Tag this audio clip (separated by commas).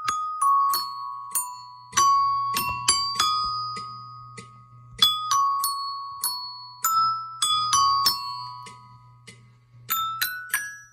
playing glockenspiel